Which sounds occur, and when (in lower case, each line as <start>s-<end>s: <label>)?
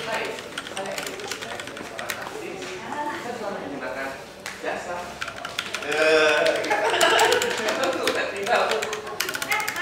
0.0s-2.1s: computer keyboard
0.0s-4.2s: speech babble
0.0s-9.8s: conversation
0.0s-9.8s: mechanisms
2.6s-3.0s: generic impact sounds
4.4s-4.6s: generic impact sounds
4.6s-5.1s: man speaking
5.1s-9.8s: computer keyboard
5.7s-6.7s: human sounds
6.6s-8.0s: laughter
7.5s-9.0s: man speaking
9.3s-9.8s: female speech